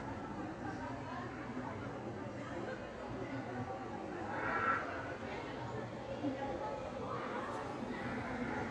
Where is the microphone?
in a park